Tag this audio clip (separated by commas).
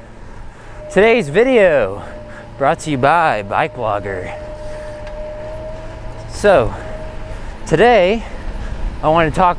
Bicycle, Speech